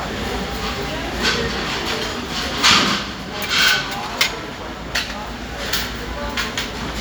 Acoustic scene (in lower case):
restaurant